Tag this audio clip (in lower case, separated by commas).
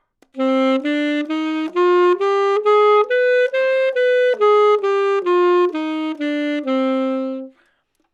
woodwind instrument, musical instrument, music